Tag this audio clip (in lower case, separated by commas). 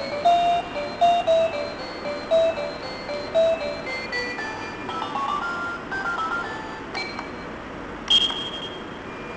music